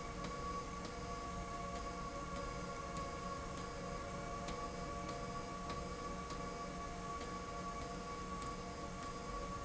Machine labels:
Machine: slide rail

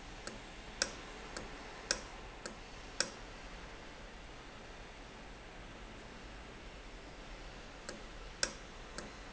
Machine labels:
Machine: valve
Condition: normal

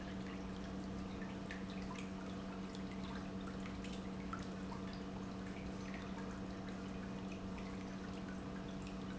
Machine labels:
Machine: pump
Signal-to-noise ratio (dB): 6 dB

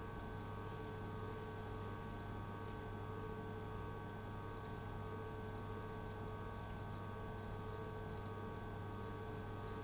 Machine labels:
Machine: pump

